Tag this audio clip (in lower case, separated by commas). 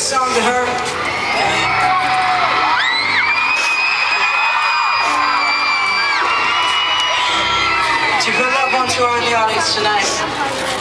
speech, music, man speaking